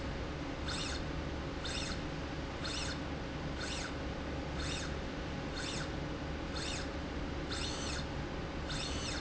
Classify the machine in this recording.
slide rail